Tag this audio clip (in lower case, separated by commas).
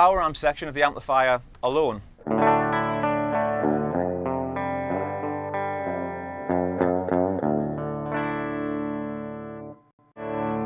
music, bowed string instrument, electric guitar, musical instrument, speech, plucked string instrument, guitar